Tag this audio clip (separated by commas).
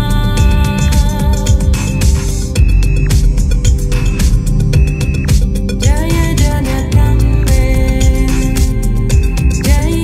Music